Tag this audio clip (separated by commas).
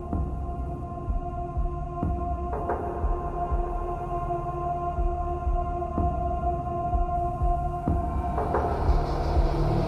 Electronic music, Music